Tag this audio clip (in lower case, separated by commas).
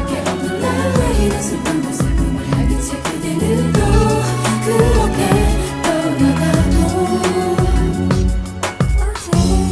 tender music, music